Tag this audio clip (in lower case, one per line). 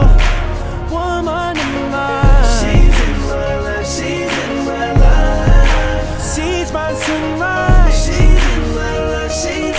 music
hip hop music